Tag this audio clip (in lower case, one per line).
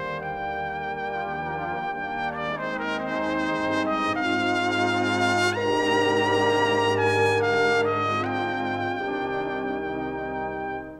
playing cornet